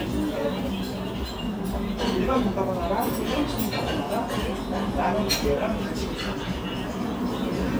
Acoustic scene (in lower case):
restaurant